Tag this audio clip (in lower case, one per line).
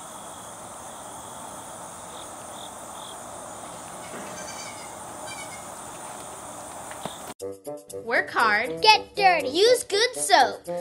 goat bleating